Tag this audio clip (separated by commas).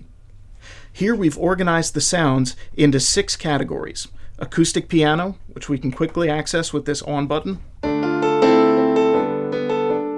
Music, Speech